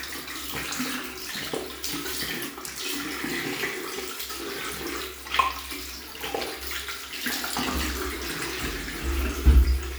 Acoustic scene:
restroom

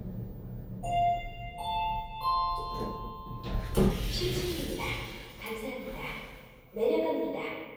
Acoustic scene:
elevator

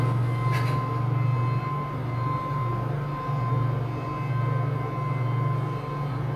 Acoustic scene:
elevator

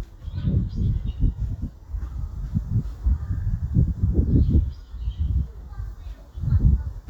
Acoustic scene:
park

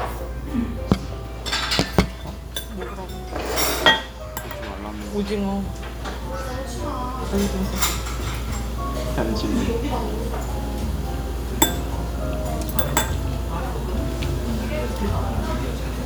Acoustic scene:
restaurant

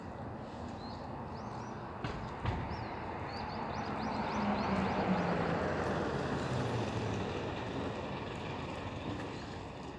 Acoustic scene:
street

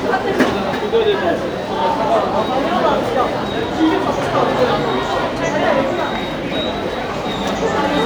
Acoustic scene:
subway station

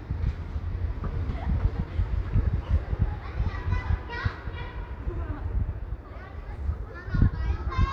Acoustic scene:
residential area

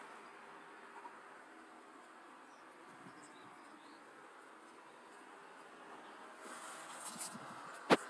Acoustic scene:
street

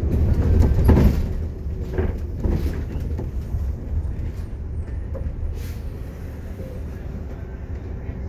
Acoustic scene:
bus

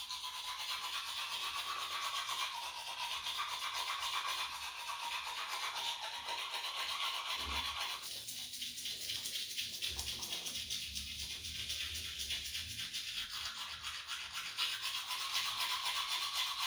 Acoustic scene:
restroom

